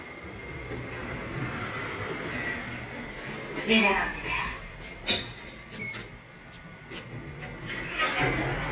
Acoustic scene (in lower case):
elevator